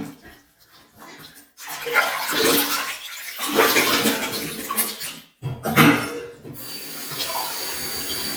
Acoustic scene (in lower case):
restroom